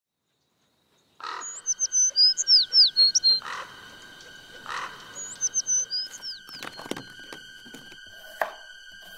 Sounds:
bird, bird call, tweet

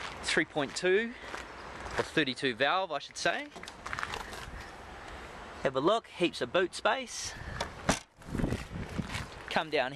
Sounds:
speech

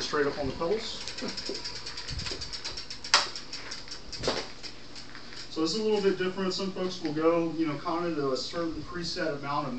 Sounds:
bicycle, vehicle, speech, inside a small room

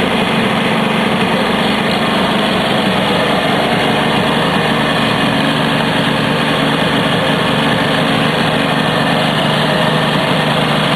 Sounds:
engine, idling, medium engine (mid frequency), vehicle

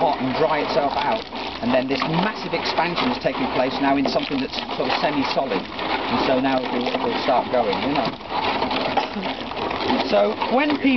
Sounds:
liquid, outside, urban or man-made, speech

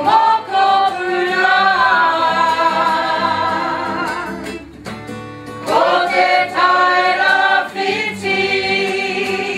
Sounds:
singing, music

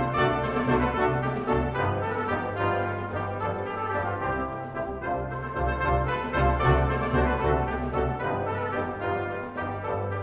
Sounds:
flamenco, music

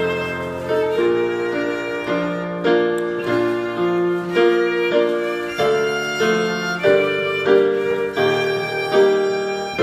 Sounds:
musical instrument, music, violin

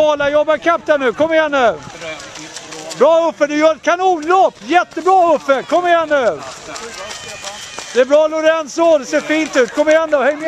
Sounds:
run, speech

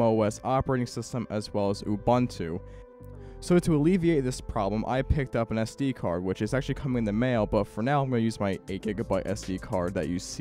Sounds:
music, speech

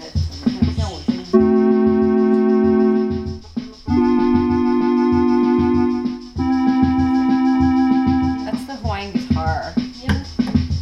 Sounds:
keyboard (musical), speech, music

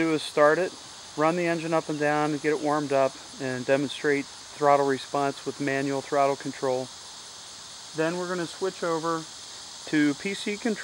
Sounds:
speech

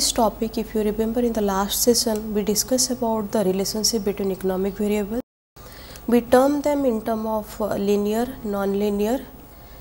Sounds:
speech

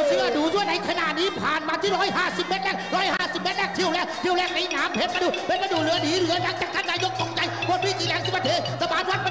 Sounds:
music, speech

